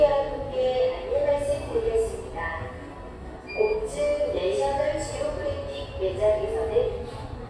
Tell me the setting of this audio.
elevator